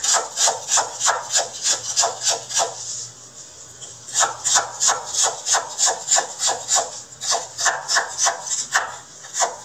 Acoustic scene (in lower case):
kitchen